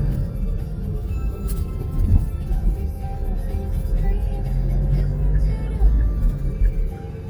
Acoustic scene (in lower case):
car